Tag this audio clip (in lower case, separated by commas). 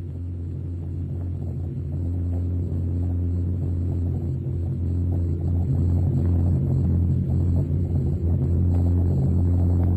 music, rumble